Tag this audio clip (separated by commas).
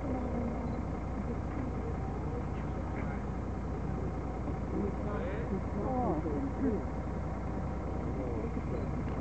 Speech